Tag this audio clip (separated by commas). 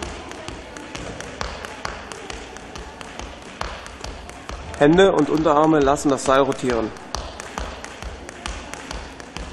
rope skipping